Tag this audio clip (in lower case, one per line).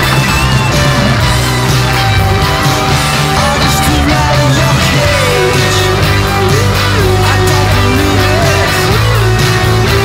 grunge
music